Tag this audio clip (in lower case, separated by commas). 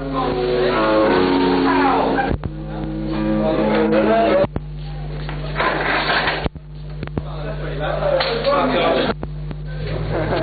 music, speech